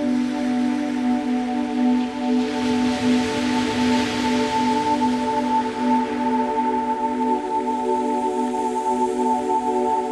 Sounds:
Music

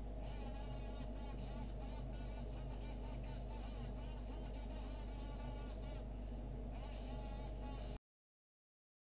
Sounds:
Speech

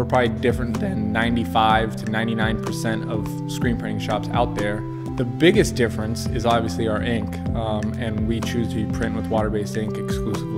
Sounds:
Speech, Music

